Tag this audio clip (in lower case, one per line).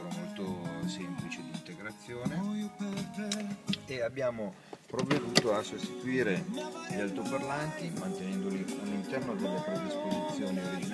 speech
music